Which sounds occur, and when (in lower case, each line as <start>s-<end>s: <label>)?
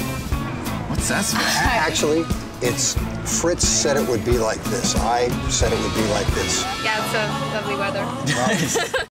0.0s-9.1s: music
0.9s-8.7s: conversation
0.9s-2.3s: male speech
1.3s-2.0s: chortle
2.6s-2.9s: male speech
3.2s-5.4s: male speech
5.5s-6.7s: male speech
6.8s-7.3s: woman speaking
7.2s-8.7s: singing
7.5s-8.0s: woman speaking
8.0s-8.1s: tick
8.2s-8.7s: male speech
8.2s-9.0s: laughter